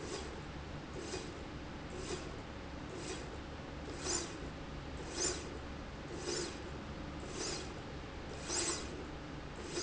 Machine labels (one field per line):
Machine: slide rail